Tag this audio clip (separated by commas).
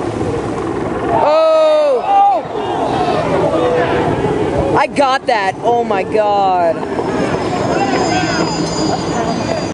Vehicle, Water vehicle, Speech, speedboat